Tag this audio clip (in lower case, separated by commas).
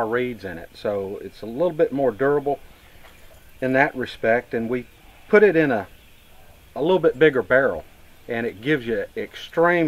speech